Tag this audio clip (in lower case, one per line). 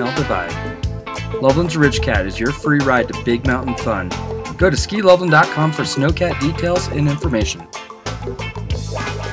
music
speech